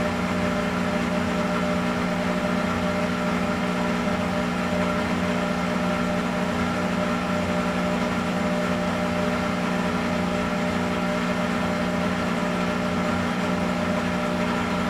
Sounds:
engine

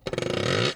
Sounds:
sawing, tools

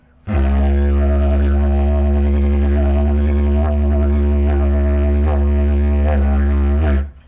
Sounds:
musical instrument, music

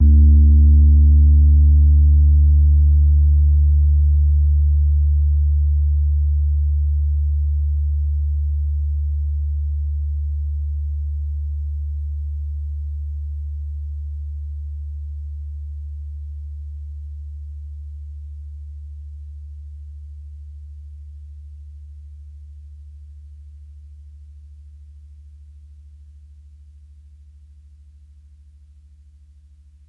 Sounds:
music, musical instrument, piano, keyboard (musical)

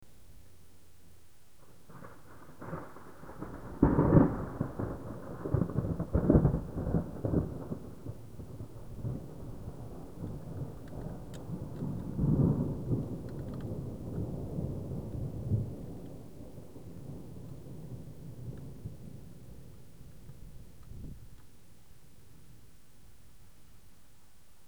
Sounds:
thunder, thunderstorm

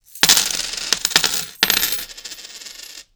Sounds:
domestic sounds, coin (dropping)

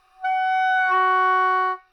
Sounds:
woodwind instrument, musical instrument, music

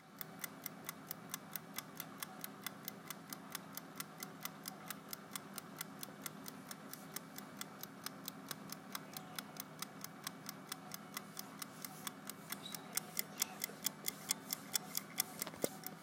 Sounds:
clock, mechanisms

